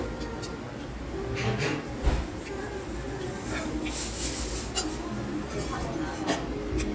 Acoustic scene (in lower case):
restaurant